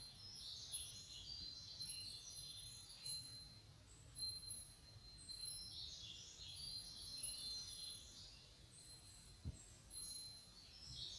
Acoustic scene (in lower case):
park